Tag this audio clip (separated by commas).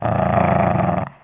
pets, Dog, Growling, Animal